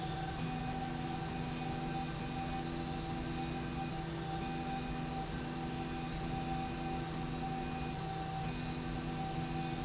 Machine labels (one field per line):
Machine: slide rail